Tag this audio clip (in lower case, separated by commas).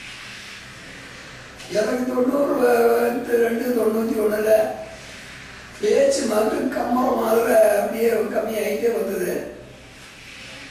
speech, narration, man speaking